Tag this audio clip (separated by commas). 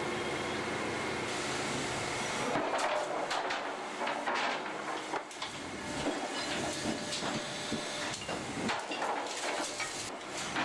inside a large room or hall